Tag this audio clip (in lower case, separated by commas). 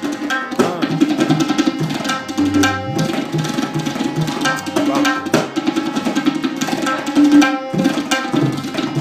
playing tabla